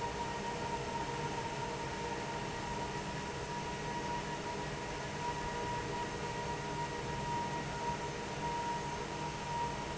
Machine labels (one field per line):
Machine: fan